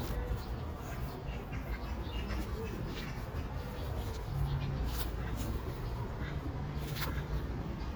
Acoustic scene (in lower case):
park